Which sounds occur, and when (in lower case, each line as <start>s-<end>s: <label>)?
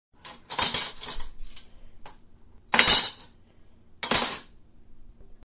0.1s-5.5s: mechanisms
0.2s-1.7s: silverware
2.1s-2.2s: silverware
2.7s-3.4s: silverware
4.0s-4.6s: silverware